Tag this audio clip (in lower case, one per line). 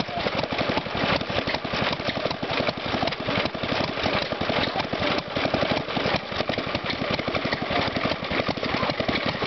speech
medium engine (mid frequency)